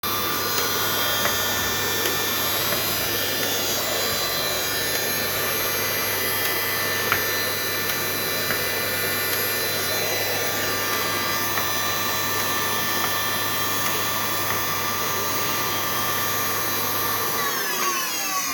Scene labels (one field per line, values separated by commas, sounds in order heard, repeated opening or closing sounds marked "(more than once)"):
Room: bedroom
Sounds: vacuum cleaner, footsteps